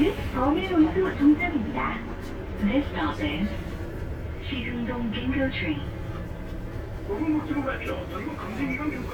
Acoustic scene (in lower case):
bus